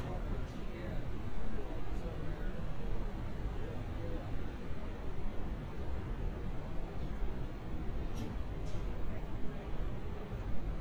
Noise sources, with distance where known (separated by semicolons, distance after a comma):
person or small group talking, near